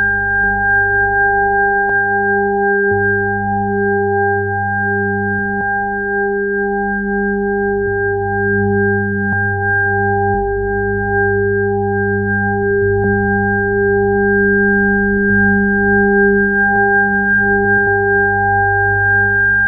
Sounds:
keyboard (musical), music, organ, musical instrument

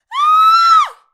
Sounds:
screaming, human voice

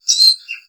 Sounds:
bird song, bird, animal, tweet, wild animals

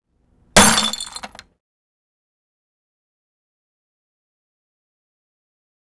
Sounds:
glass, shatter

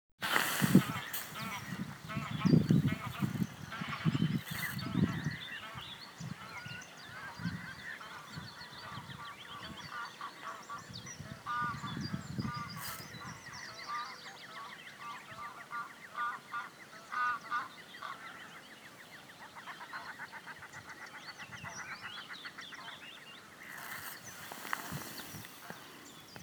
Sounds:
animal, bird, bird call, wild animals

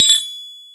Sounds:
tools

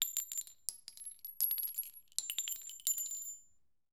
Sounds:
glass, chink

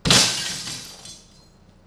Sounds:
glass, shatter

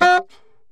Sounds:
music, wind instrument, musical instrument

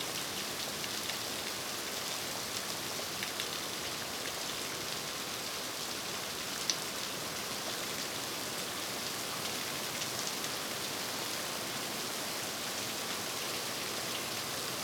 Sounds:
water, rain

